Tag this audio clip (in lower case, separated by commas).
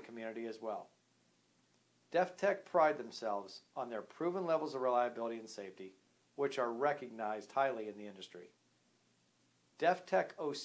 speech